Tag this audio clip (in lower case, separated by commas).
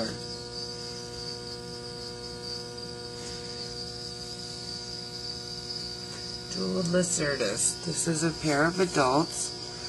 speech